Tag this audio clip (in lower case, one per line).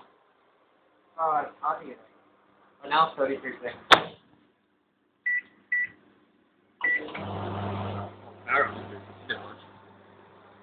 speech